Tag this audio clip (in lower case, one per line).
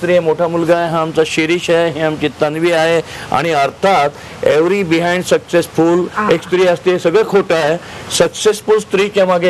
speech